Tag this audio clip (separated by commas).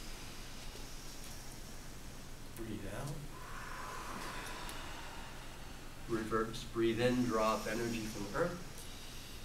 Speech